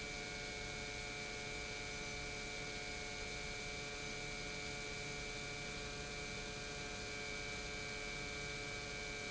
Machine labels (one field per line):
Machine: pump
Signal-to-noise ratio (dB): 6 dB